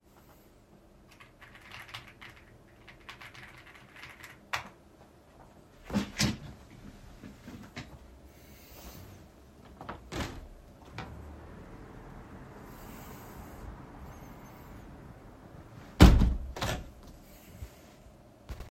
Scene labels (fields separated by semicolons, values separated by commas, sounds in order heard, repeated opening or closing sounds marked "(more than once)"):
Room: office; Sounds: keyboard typing, window (more than once)